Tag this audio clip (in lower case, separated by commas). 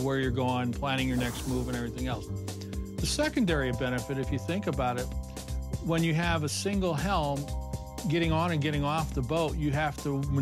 music, speech